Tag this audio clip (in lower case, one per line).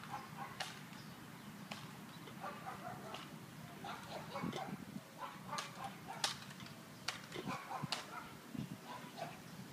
dog
yip
outside, rural or natural
bow-wow